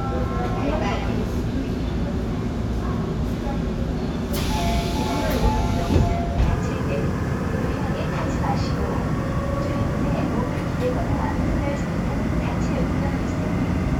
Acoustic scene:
subway train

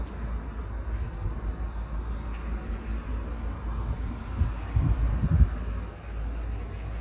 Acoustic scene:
street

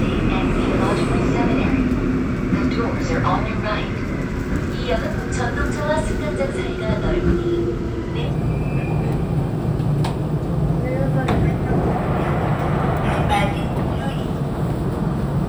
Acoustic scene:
subway train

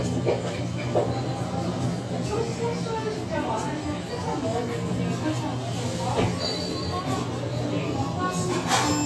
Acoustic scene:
restaurant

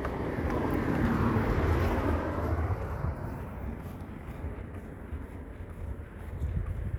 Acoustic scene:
residential area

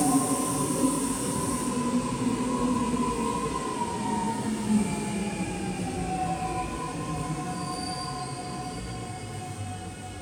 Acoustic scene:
subway station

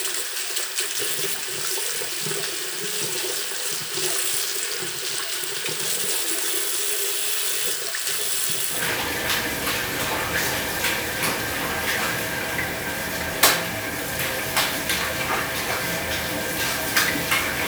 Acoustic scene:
restroom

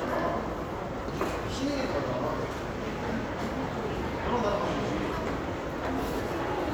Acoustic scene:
crowded indoor space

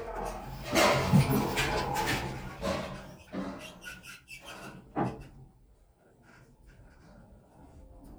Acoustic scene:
elevator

